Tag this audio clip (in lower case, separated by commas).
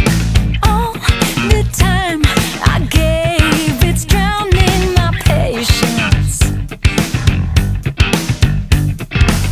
music, blues